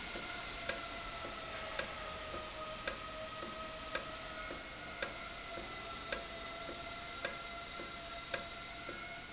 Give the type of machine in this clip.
valve